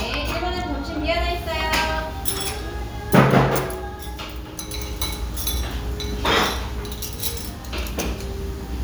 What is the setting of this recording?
restaurant